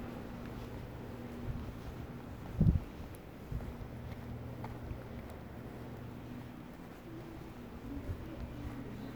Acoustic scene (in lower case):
residential area